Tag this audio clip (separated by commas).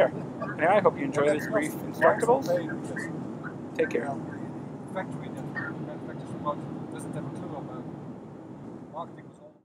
Speech